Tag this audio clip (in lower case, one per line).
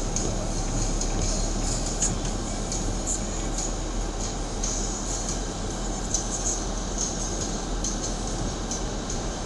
car
music
vehicle